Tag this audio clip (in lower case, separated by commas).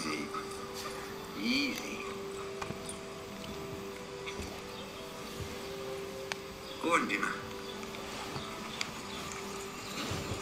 music, speech